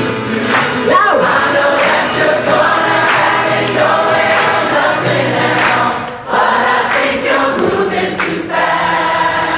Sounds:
singing choir

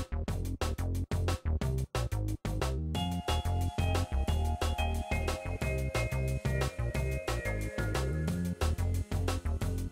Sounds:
Music, Background music, Rhythm and blues

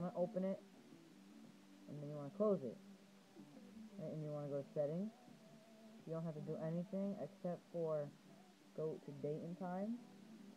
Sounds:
Speech

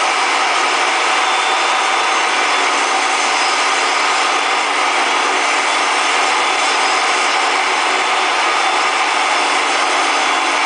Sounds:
Wood, Sawing

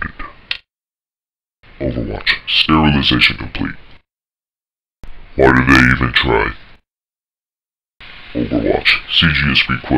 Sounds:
Speech, Sound effect

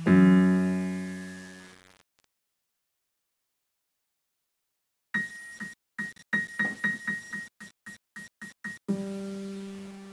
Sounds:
Music, inside a small room

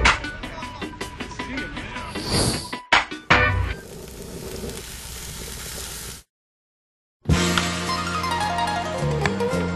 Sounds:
Soundtrack music, Speech, Music

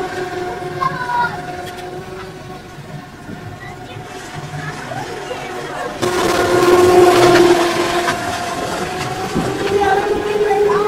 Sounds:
Speech

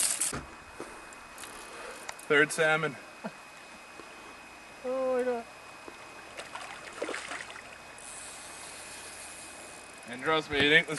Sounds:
outside, rural or natural, Speech

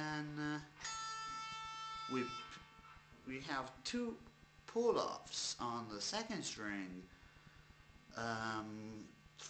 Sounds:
Guitar, Plucked string instrument, Speech, Music, Musical instrument

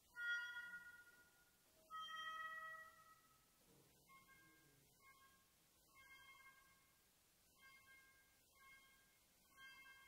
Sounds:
Music

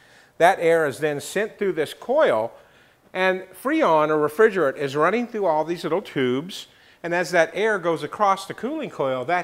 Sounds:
Speech

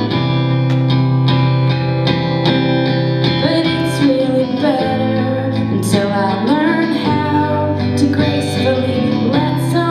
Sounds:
Music

